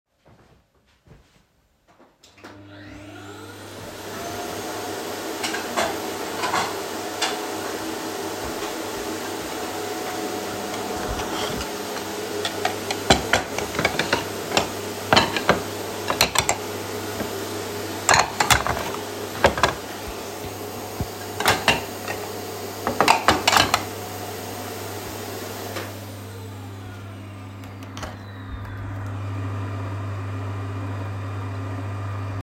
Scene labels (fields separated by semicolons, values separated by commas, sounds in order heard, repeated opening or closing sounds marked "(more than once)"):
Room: kitchen; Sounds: footsteps, vacuum cleaner, microwave, cutlery and dishes